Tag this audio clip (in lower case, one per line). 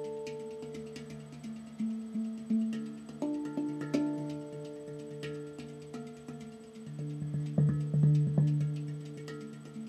music